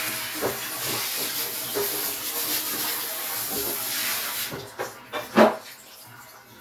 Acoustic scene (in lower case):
restroom